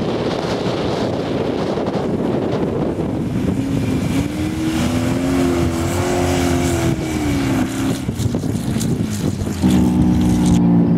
A crashing roar occurs, the wind is blowing, then motor vehicle engines are running